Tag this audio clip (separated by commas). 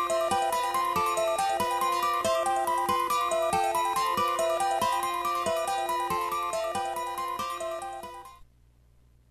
Music